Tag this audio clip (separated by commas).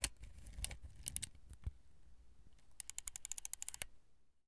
Camera, Mechanisms